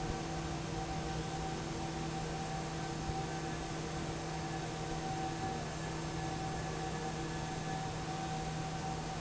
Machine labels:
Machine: fan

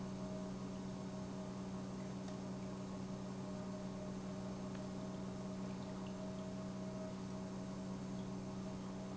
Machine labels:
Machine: pump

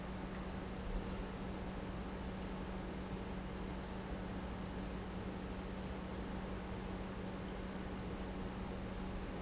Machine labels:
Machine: pump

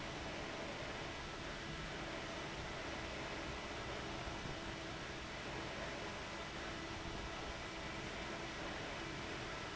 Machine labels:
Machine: fan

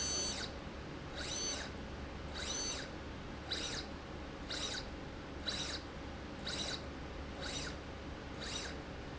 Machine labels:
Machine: slide rail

